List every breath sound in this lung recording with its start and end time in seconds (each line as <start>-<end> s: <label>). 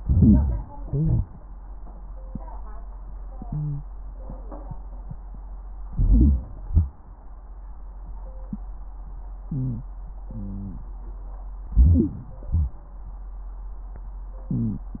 0.00-0.69 s: crackles
0.00-0.70 s: inhalation
0.71-1.40 s: wheeze
0.71-1.40 s: crackles
0.73-1.43 s: exhalation
5.85-6.54 s: crackles
5.90-6.55 s: inhalation
6.67-7.19 s: exhalation
9.42-9.91 s: crackles
9.42-9.97 s: inhalation
10.26-10.99 s: exhalation
10.26-10.99 s: crackles
11.72-12.48 s: wheeze
11.74-12.49 s: inhalation
12.48-12.84 s: exhalation
14.52-14.95 s: inhalation
14.52-14.95 s: wheeze